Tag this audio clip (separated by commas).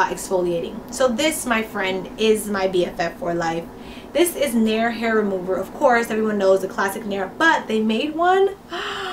Speech, inside a small room